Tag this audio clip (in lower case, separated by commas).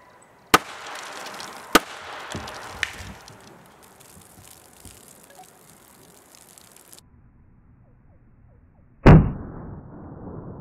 arrow